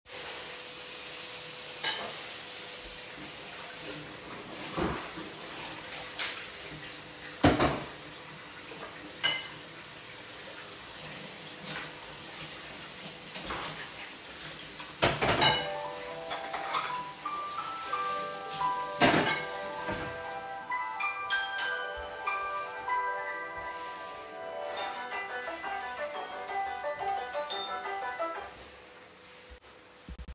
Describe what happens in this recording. I was washing the dishes with running water, while someone else was vacuum cleaning another room at the same time. I than heard my phone ringing put down the dishes stopped the water, walked to my phone and confirmed the call. The other person was still vacuum cleaning at the same time till the end of the recording.